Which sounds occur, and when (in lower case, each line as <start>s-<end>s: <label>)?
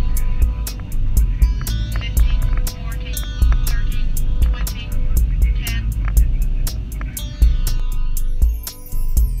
0.0s-9.4s: music
0.7s-0.8s: tick
1.6s-1.7s: tick
1.9s-2.0s: tick
1.9s-2.5s: female speech
2.1s-2.6s: generic impact sounds
2.6s-3.2s: female speech
3.2s-3.2s: tick
3.4s-3.8s: generic impact sounds
3.6s-4.1s: female speech
4.4s-4.9s: female speech
4.4s-4.7s: generic impact sounds
5.4s-5.8s: female speech
6.0s-6.1s: tick
7.0s-7.0s: tick
7.6s-7.7s: tick